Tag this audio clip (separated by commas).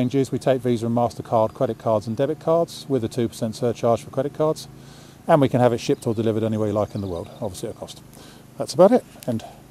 outside, rural or natural, Speech